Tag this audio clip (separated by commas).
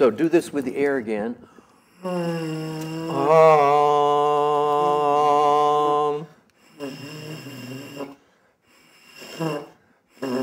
Speech, inside a small room